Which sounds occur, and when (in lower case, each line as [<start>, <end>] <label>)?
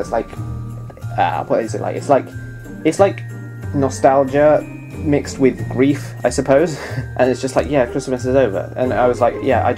[0.00, 0.32] man speaking
[0.00, 9.75] music
[0.88, 2.39] man speaking
[2.82, 3.19] man speaking
[3.70, 4.60] man speaking
[4.96, 6.07] man speaking
[6.23, 6.71] man speaking
[6.73, 7.02] breathing
[7.17, 8.63] man speaking
[7.51, 7.64] tick
[8.77, 9.75] man speaking